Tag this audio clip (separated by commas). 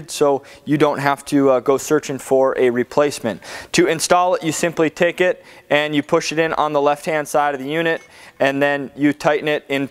planing timber